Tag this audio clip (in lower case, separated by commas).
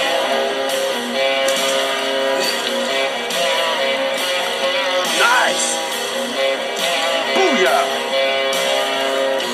music, speech